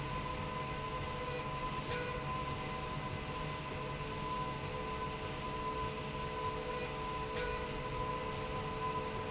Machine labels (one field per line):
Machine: slide rail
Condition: normal